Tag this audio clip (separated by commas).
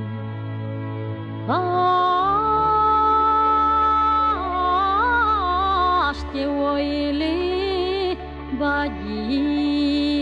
Music